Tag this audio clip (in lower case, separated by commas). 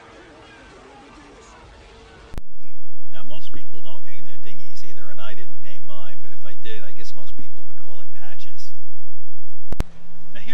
speech